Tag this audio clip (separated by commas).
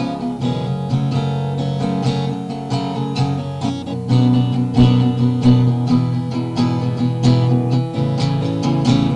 Music, Plucked string instrument, Musical instrument, Guitar, Strum